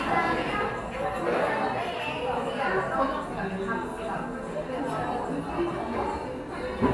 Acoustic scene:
cafe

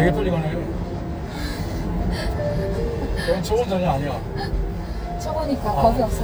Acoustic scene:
car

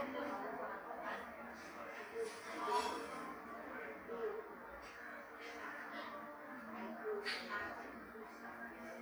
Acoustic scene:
cafe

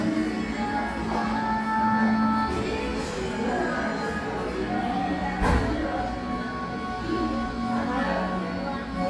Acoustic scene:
crowded indoor space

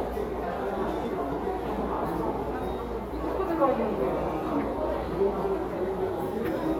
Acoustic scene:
subway station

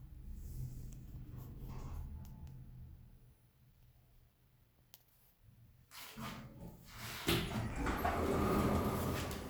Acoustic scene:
elevator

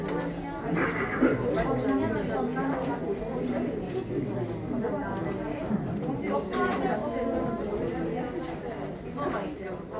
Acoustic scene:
crowded indoor space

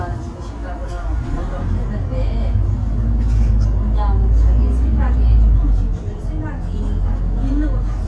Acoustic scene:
bus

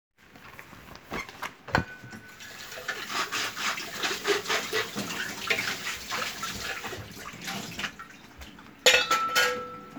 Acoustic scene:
kitchen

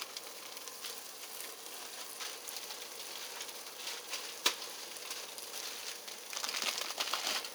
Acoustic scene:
kitchen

